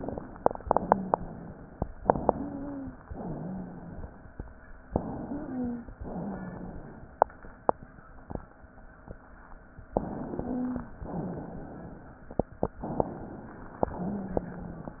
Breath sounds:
Inhalation: 1.97-3.07 s, 4.90-5.92 s, 9.92-10.94 s, 12.77-13.83 s
Exhalation: 0.60-1.71 s, 3.09-4.20 s, 6.00-7.03 s, 11.02-12.23 s, 13.87-14.98 s
Wheeze: 0.80-1.71 s, 2.27-2.99 s, 3.13-3.90 s, 5.12-5.88 s, 6.16-6.89 s, 10.20-10.92 s, 13.99-14.92 s

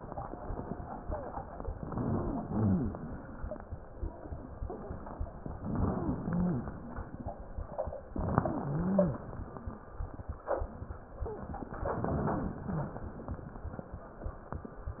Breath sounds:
Inhalation: 1.69-2.41 s, 5.58-6.19 s, 8.10-8.71 s, 11.88-12.62 s
Exhalation: 2.39-3.11 s, 6.26-6.87 s, 8.71-9.32 s, 12.66-13.40 s
Wheeze: 2.39-2.96 s, 5.58-6.19 s, 6.26-6.87 s, 8.39-8.71 s, 11.88-12.62 s, 12.64-13.09 s

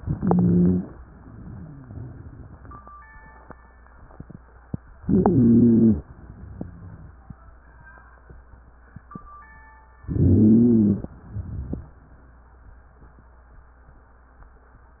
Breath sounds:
Inhalation: 0.00-0.98 s, 5.00-6.06 s, 10.06-11.11 s
Exhalation: 1.07-2.91 s, 6.09-7.19 s, 11.11-11.97 s
Wheeze: 0.00-0.98 s, 5.00-6.06 s, 10.06-11.11 s
Rhonchi: 1.07-2.25 s, 6.27-7.19 s, 11.15-11.93 s

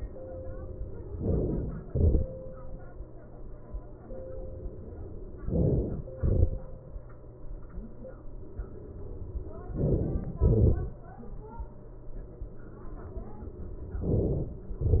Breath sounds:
Inhalation: 1.23-1.85 s, 5.42-6.10 s, 9.76-10.31 s, 14.00-14.68 s
Exhalation: 1.85-2.53 s, 6.11-6.68 s, 10.28-10.85 s

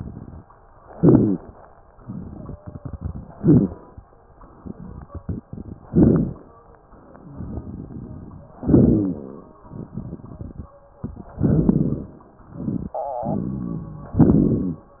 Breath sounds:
Inhalation: 0.89-1.41 s, 3.36-3.87 s, 5.90-6.42 s, 8.63-9.32 s, 11.40-12.20 s, 14.19-14.88 s
Exhalation: 1.97-3.34 s, 4.54-5.75 s, 7.25-8.54 s, 9.66-10.74 s, 13.19-14.16 s
Wheeze: 0.89-1.41 s, 2.28-3.34 s, 3.36-3.87 s, 5.90-6.42 s, 8.63-9.32 s, 11.40-12.20 s, 14.19-14.88 s
Rhonchi: 13.19-14.16 s
Crackles: 1.97-3.34 s, 4.54-5.75 s, 7.25-8.54 s, 9.66-10.74 s

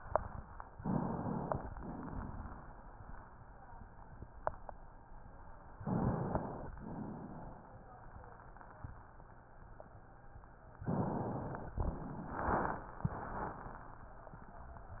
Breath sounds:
Inhalation: 0.77-1.71 s, 5.82-6.76 s, 10.87-11.81 s
Exhalation: 1.72-2.81 s, 6.75-7.81 s, 11.80-13.02 s

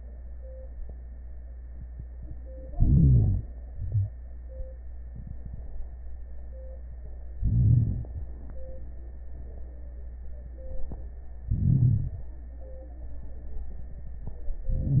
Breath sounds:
Inhalation: 2.74-3.46 s, 7.45-8.08 s, 11.55-12.22 s, 14.72-15.00 s
Exhalation: 3.74-4.09 s
Wheeze: 2.74-3.46 s

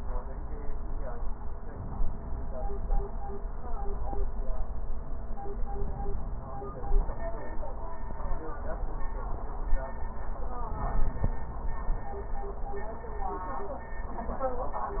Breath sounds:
Inhalation: 1.60-3.33 s, 5.52-7.26 s, 10.40-11.99 s

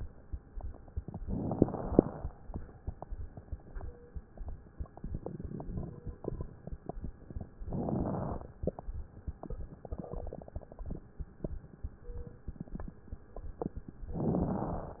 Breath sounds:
Inhalation: 1.22-2.20 s, 7.68-8.46 s, 14.15-15.00 s
Crackles: 1.22-2.20 s, 7.68-8.46 s, 14.15-15.00 s

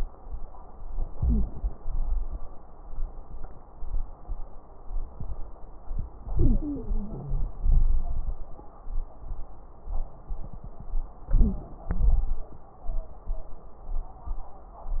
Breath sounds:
Inhalation: 1.12-1.76 s, 6.29-7.54 s, 11.27-11.91 s
Exhalation: 1.77-2.42 s, 7.62-8.61 s, 11.96-12.60 s
Wheeze: 1.12-1.76 s, 6.29-7.54 s, 11.27-11.91 s
Crackles: 1.77-2.42 s, 7.62-8.61 s, 11.96-12.60 s

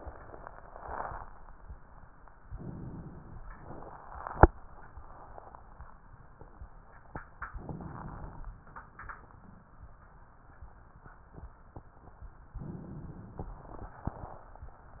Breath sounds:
Inhalation: 2.49-3.45 s, 7.55-8.51 s, 12.55-13.69 s
Crackles: 7.55-8.51 s, 12.55-13.69 s

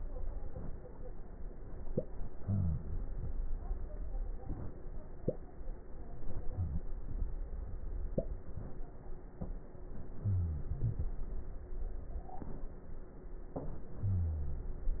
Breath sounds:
Wheeze: 10.27-10.71 s, 14.03-14.79 s

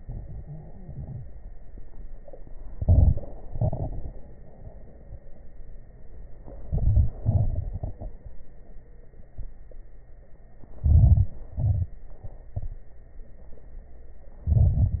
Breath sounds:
Inhalation: 2.68-3.47 s, 6.38-7.17 s, 10.81-11.47 s, 14.44-15.00 s
Exhalation: 3.49-4.28 s, 7.18-8.70 s, 11.58-12.24 s
Crackles: 2.68-3.47 s, 3.49-4.28 s, 6.38-7.17 s, 7.18-8.70 s, 10.81-11.47 s, 11.58-12.24 s, 14.44-15.00 s

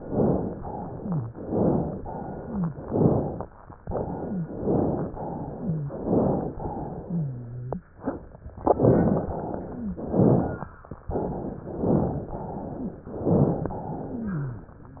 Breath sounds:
Inhalation: 0.00-0.55 s, 1.37-1.96 s, 2.88-3.47 s, 4.51-5.11 s, 5.94-6.53 s, 8.73-9.32 s, 10.06-10.76 s, 11.67-12.37 s, 13.17-13.79 s
Exhalation: 0.59-1.29 s, 2.01-2.79 s, 3.80-4.50 s, 5.22-5.92 s, 6.62-7.82 s, 9.32-10.04 s, 11.04-11.63 s, 12.37-13.09 s, 13.81-14.74 s
Wheeze: 0.89-1.35 s, 2.39-2.85 s, 4.18-4.51 s, 5.58-5.92 s, 7.02-7.91 s, 9.70-10.07 s, 12.79-13.02 s, 14.06-14.76 s

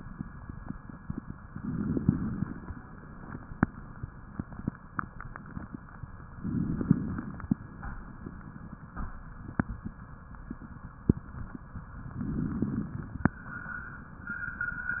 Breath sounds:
Inhalation: 1.57-2.64 s, 6.41-7.48 s, 12.11-13.26 s
Crackles: 1.57-2.64 s, 6.41-7.48 s, 12.11-13.26 s

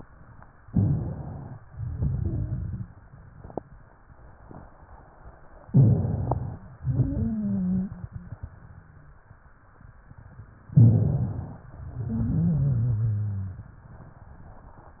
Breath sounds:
Inhalation: 0.62-1.58 s, 5.67-6.63 s, 10.72-11.68 s
Exhalation: 1.67-2.91 s, 6.88-8.00 s, 11.74-13.83 s
Wheeze: 1.67-2.91 s, 6.94-7.92 s, 12.18-13.53 s

